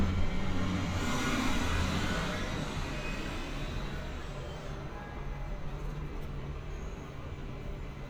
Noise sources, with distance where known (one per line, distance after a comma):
large-sounding engine